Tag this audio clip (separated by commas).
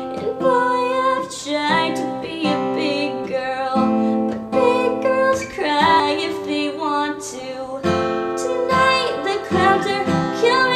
Music